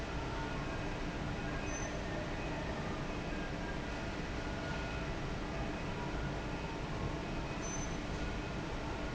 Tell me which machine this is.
fan